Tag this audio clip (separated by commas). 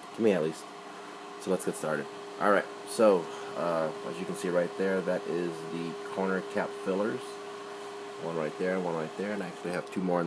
Printer, Speech